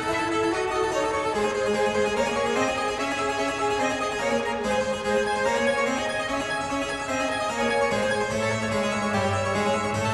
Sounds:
playing harpsichord

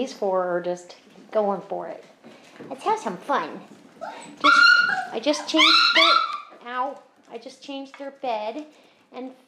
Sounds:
Speech, inside a small room, Dog, Animal, pets

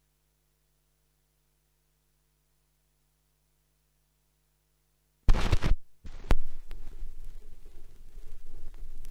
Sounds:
Silence

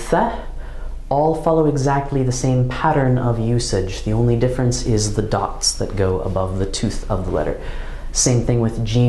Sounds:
Speech

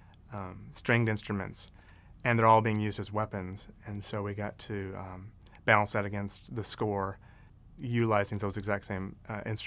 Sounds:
Speech

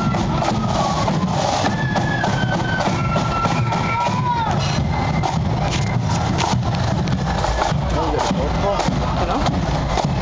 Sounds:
Music, footsteps, Speech

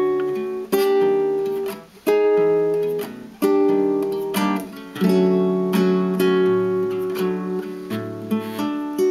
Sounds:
Plucked string instrument, Musical instrument, Guitar, Zither

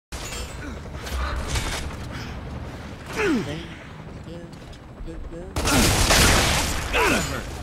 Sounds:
Speech

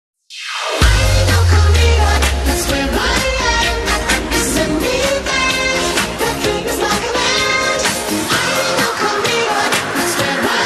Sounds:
Music

